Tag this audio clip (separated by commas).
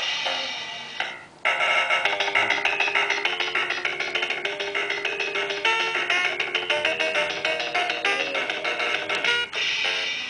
Music, Trumpet